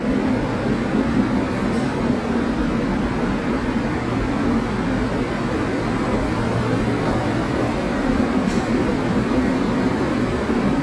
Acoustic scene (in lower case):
subway station